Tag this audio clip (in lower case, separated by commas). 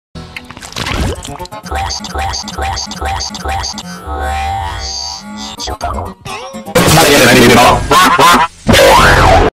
speech